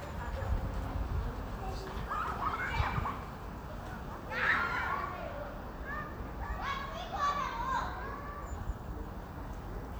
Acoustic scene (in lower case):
residential area